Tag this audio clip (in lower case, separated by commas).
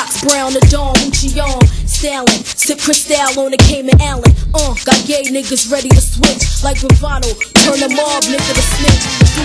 music